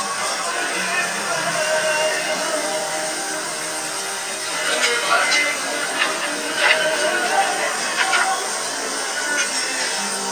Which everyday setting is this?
restaurant